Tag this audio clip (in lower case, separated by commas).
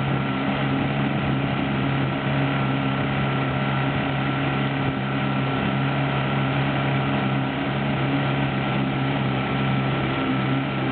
vehicle, speedboat, motorboat